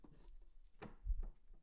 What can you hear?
wooden cupboard opening